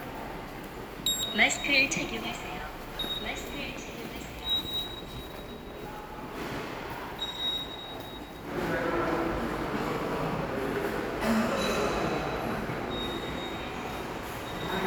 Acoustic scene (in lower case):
subway station